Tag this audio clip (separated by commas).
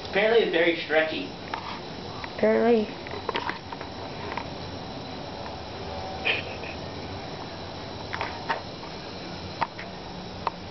Speech